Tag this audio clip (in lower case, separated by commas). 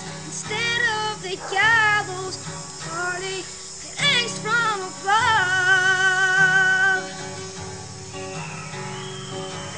child singing, music